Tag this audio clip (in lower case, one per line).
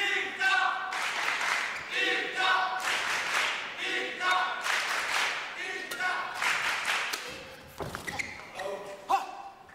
speech